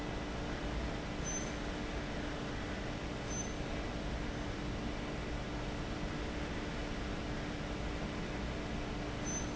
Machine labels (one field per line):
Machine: fan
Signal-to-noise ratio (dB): -6 dB